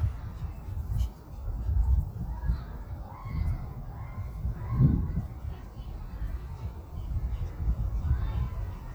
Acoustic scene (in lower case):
residential area